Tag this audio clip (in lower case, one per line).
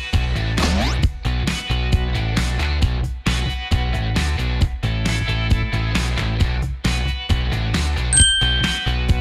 running electric fan